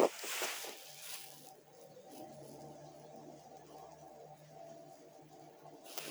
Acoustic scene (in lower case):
elevator